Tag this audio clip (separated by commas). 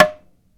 Tap